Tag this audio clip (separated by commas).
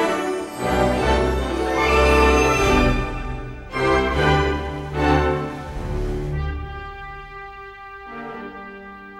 Music